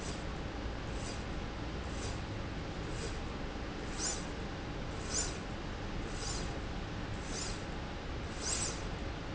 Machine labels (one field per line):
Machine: slide rail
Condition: normal